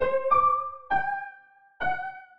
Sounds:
Musical instrument, Piano, Keyboard (musical), Music

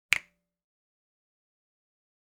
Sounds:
Hands, Finger snapping

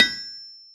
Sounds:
Tools

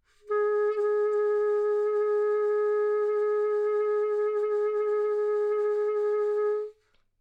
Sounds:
Musical instrument, Music, woodwind instrument

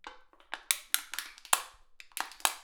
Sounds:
Crushing

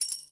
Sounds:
Tambourine, Percussion, Music, Musical instrument

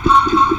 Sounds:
Truck, Vehicle, Motor vehicle (road)

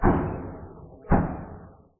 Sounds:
Explosion

